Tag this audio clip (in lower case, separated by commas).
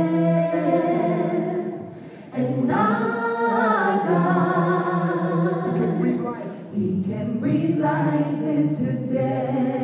male singing, female singing, choir